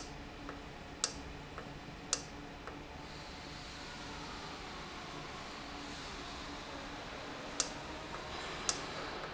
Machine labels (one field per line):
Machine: valve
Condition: normal